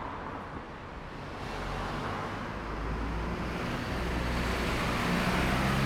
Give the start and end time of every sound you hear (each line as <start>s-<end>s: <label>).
0.0s-5.9s: bus
0.0s-5.9s: bus engine accelerating
0.0s-5.9s: car
0.0s-5.9s: car wheels rolling